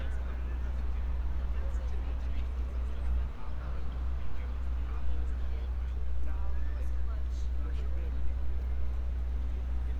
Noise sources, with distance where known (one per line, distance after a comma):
person or small group talking, far